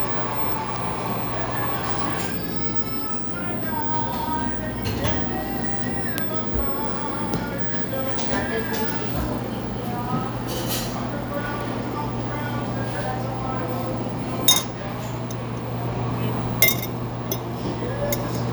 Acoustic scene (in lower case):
cafe